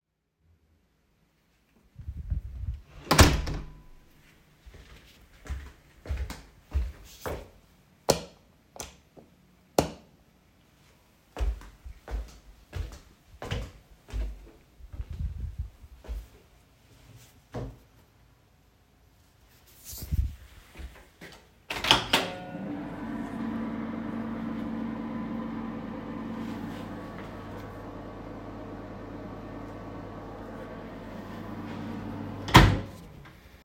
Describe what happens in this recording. I opened the door inside my home and went straight to the light switch to turn on the light, I then went to the microwave and opened its door